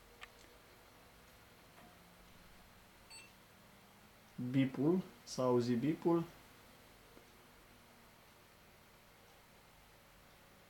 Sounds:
speech

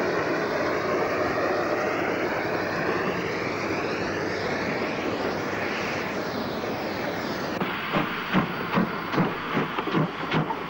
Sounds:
train wagon, train, vehicle, rail transport

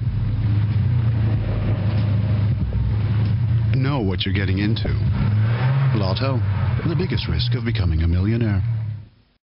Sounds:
speech

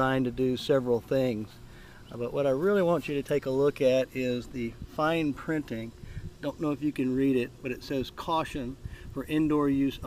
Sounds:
speech

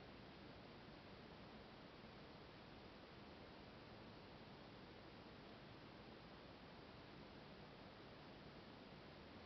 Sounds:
black capped chickadee calling

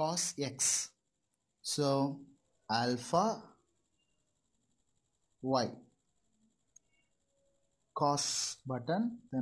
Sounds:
speech

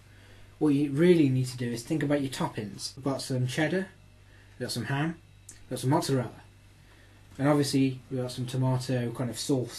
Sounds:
speech

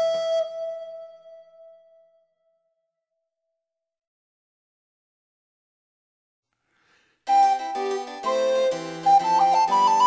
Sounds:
playing harpsichord

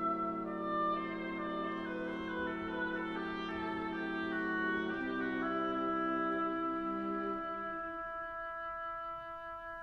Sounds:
music, inside a small room

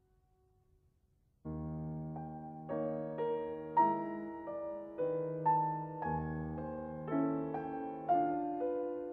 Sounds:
keyboard (musical), piano, musical instrument, music, electric piano

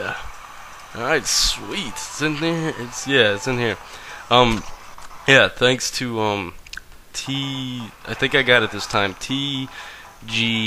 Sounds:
music, speech

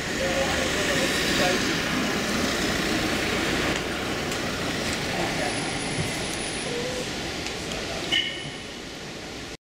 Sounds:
speech

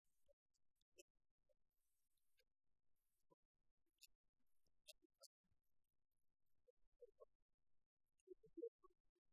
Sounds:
speech

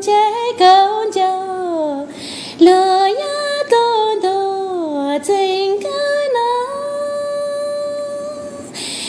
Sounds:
female singing

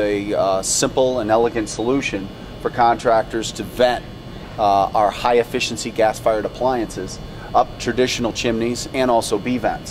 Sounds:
speech

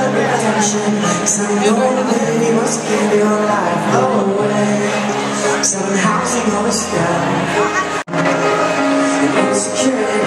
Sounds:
music, speech

